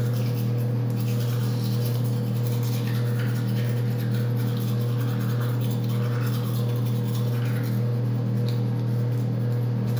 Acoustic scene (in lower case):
restroom